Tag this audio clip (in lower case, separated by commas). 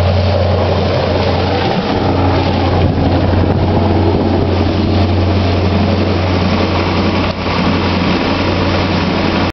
medium engine (mid frequency), idling, vehicle, engine